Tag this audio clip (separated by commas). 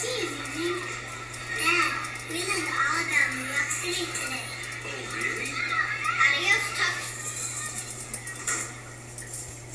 Speech